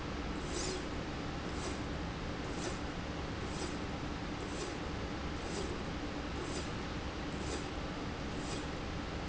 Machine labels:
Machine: slide rail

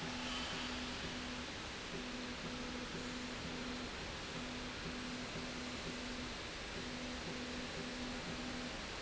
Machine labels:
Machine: slide rail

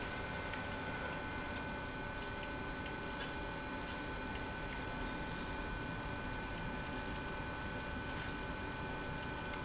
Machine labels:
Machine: pump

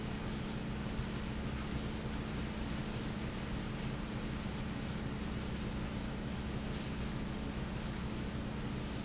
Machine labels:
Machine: fan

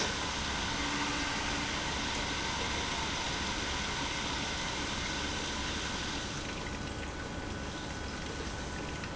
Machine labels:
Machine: pump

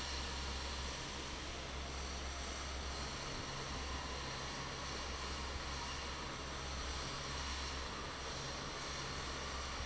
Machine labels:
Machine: fan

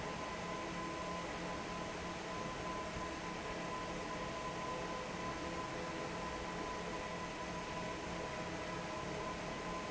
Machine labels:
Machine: fan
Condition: normal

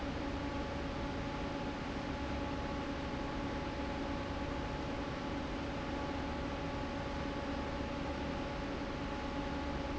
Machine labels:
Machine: fan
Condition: normal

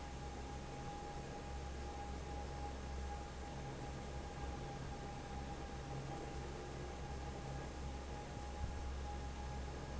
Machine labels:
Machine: fan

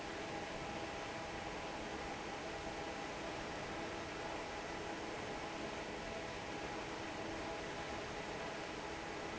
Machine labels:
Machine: fan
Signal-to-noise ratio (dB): 6 dB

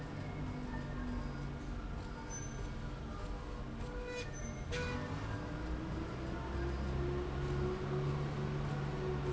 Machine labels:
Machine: slide rail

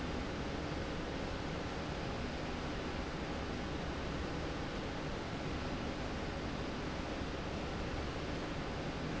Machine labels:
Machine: slide rail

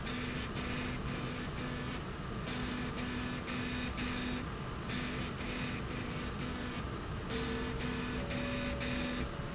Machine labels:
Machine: slide rail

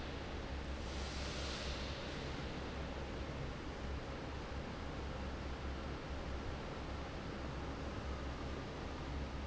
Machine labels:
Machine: fan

